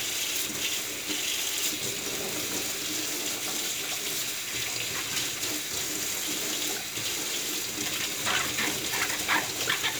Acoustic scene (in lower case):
kitchen